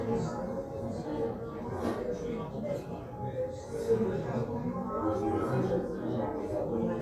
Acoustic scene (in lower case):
crowded indoor space